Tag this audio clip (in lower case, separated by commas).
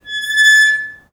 squeak